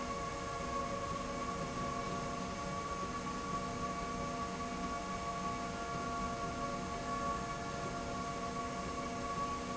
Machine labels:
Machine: slide rail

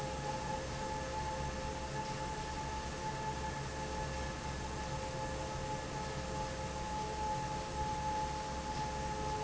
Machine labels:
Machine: fan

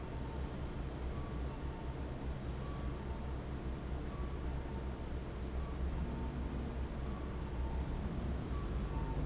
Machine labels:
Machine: fan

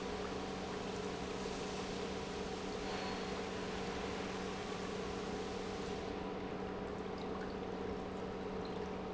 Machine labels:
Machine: pump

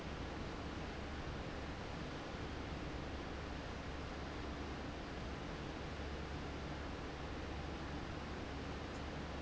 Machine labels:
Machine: fan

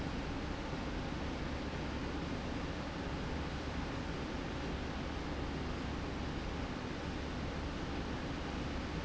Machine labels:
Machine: slide rail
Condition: normal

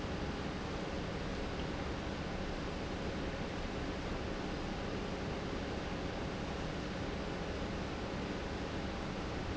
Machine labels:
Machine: pump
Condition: normal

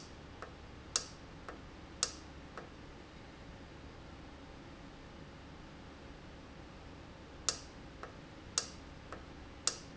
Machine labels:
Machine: valve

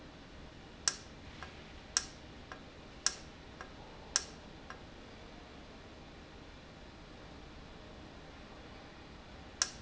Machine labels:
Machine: valve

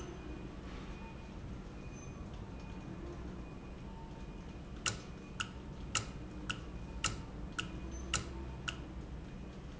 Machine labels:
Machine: valve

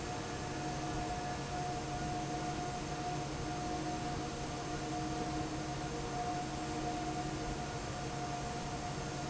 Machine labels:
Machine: fan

